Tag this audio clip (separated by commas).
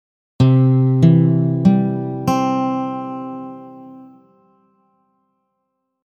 Plucked string instrument, Guitar, Musical instrument, Music